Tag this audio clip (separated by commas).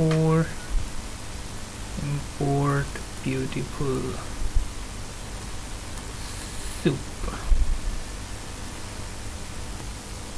Speech, Pink noise